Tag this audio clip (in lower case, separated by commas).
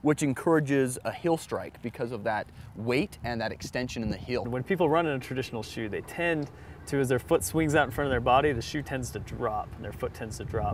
outside, rural or natural, speech